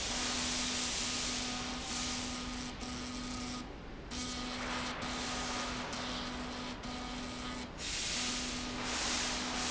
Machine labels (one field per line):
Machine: slide rail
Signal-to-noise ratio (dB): -6 dB